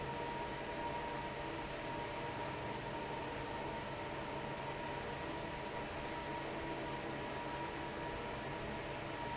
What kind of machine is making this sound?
fan